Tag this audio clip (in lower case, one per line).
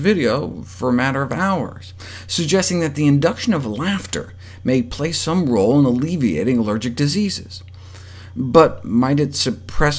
speech